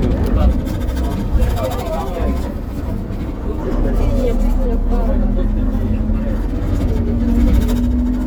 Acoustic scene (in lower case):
bus